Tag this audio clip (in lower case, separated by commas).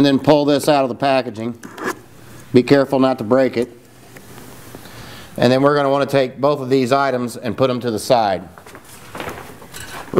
speech